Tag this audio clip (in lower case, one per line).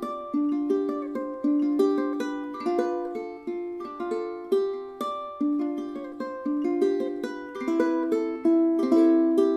music
independent music